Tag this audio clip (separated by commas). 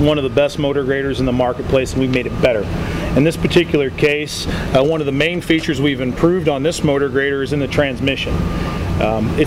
Speech